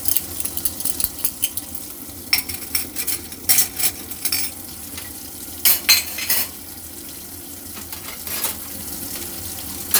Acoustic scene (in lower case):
kitchen